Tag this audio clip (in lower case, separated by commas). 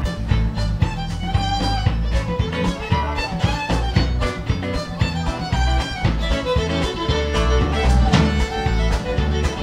musical instrument, pizzicato, music, violin